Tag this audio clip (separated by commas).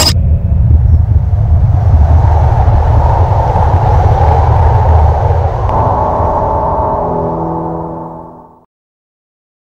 Music